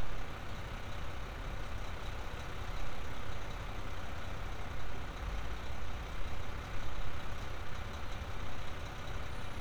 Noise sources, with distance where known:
medium-sounding engine, near

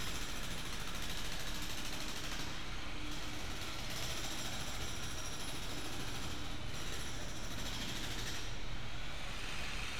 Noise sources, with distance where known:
jackhammer

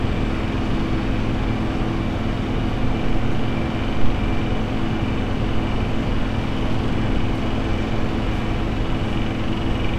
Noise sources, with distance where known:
unidentified impact machinery

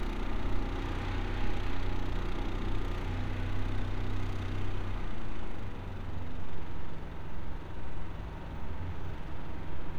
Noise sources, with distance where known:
engine of unclear size

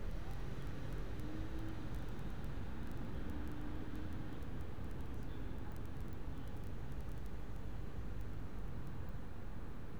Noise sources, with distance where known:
medium-sounding engine, far

